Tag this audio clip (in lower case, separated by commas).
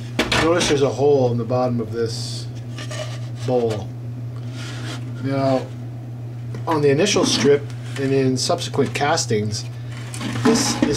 speech